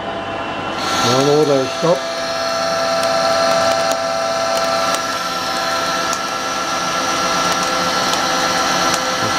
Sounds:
speech, tools

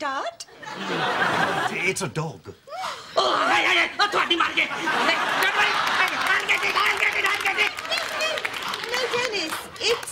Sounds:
speech

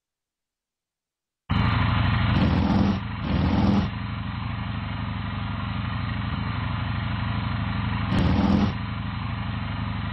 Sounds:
motorcycle, driving motorcycle

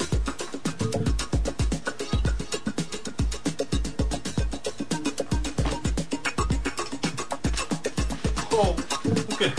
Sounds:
speech, music

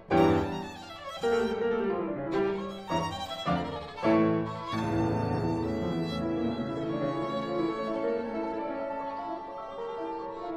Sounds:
musical instrument, music, fiddle

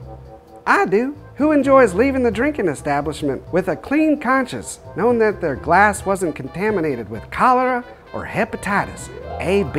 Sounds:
music, speech

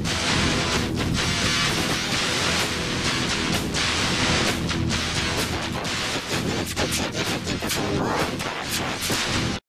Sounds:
speech, music

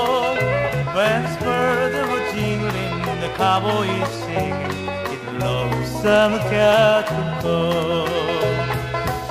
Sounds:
music

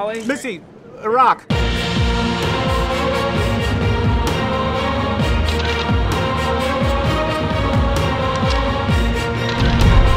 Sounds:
music, speech

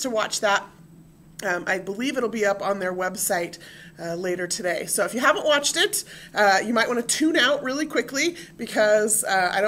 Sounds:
speech

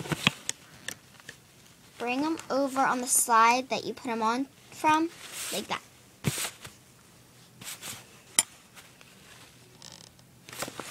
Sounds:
speech

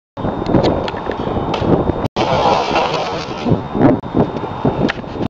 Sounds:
bicycle, vehicle

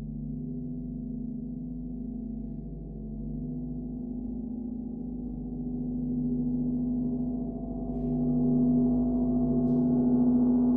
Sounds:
gong

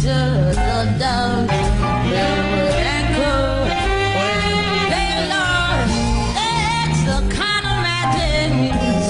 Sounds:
music

